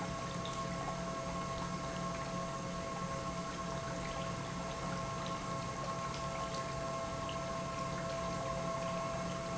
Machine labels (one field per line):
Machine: pump